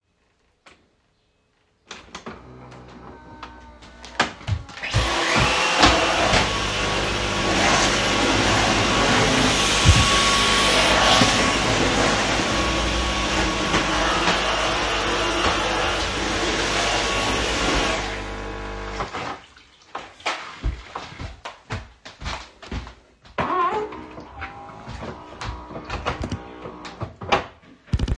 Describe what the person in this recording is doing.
I turned on the cofffee machine, walked in the kitchen and used the vacuum cleaner.